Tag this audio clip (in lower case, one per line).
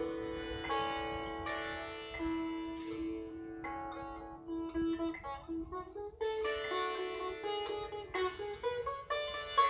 playing sitar